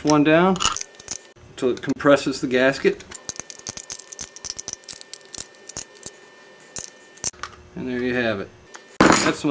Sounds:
Speech

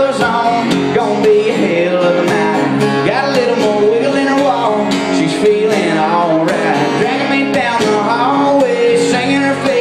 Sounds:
Music

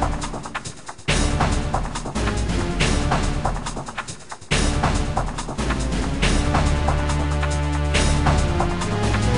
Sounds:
Music

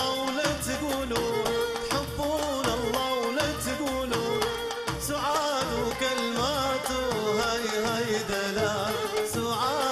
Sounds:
Music, Traditional music, Middle Eastern music

